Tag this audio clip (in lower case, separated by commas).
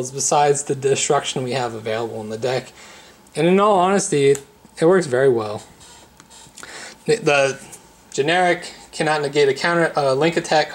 inside a small room, speech